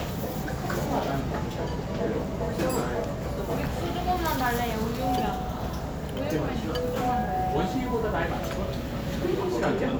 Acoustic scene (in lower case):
restaurant